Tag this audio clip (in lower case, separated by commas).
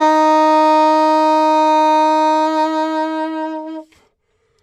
woodwind instrument, musical instrument, music